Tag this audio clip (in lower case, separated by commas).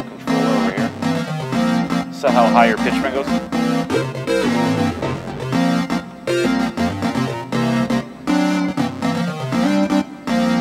musical instrument, speech, music